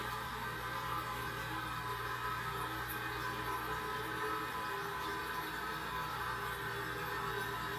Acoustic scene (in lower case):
restroom